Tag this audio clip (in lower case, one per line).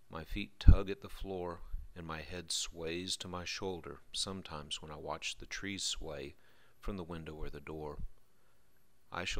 speech